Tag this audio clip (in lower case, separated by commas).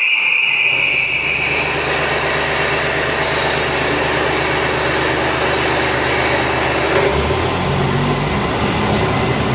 vehicle